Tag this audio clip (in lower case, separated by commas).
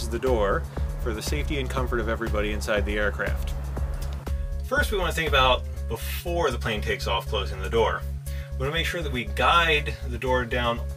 music, speech